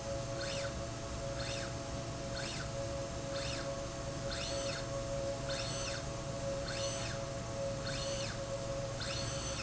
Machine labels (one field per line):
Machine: slide rail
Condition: normal